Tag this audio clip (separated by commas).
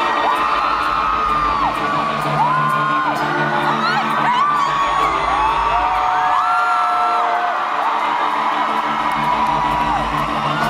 Music